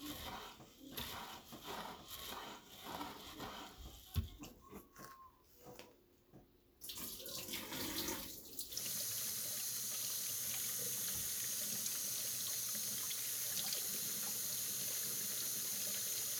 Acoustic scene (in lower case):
kitchen